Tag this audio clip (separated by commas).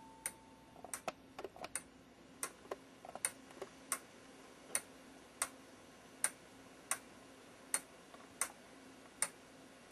Tick, Tick-tock